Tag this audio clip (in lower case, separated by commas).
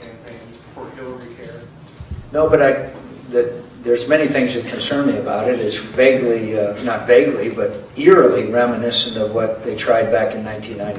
speech